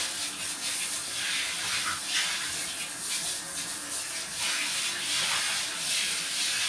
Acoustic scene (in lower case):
restroom